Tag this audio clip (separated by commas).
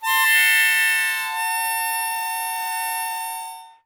Musical instrument, Music, Harmonica